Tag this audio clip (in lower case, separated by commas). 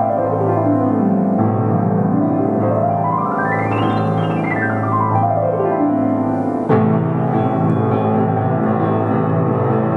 piano, musical instrument, music, keyboard (musical)